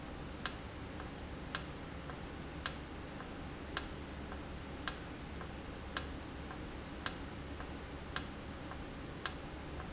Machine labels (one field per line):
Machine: valve